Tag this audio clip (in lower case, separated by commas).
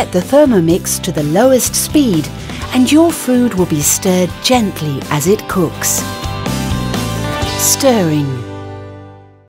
music, speech